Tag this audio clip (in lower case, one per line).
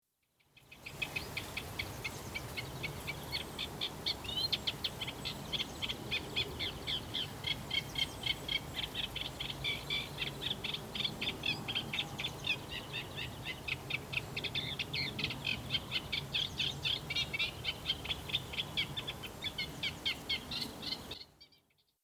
wild animals
bird
animal